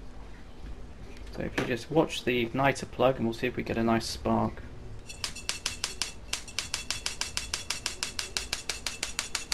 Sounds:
Speech

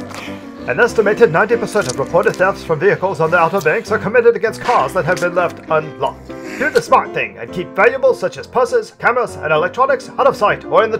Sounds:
Speech, Music

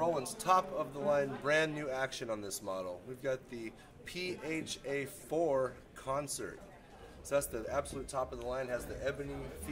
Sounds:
Speech

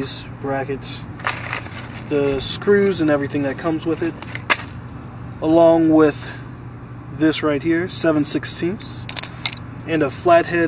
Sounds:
Speech, outside, urban or man-made

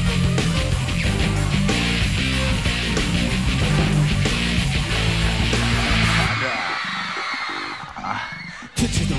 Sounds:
Music, Exciting music

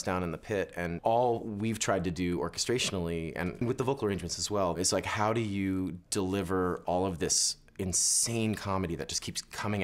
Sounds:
Speech

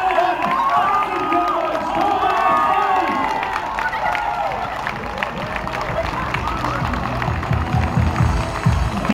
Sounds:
Music, Speech, outside, urban or man-made

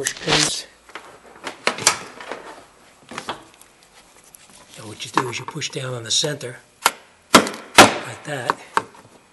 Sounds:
Speech

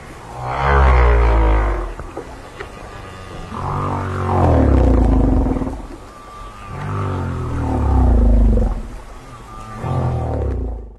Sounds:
whale calling

